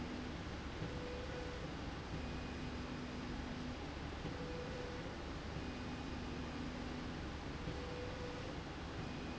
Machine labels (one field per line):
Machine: slide rail